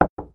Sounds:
Knock, Domestic sounds, Door, Wood

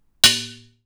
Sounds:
Domestic sounds, dishes, pots and pans

